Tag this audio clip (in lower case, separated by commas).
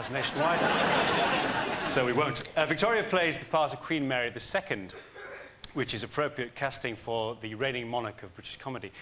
speech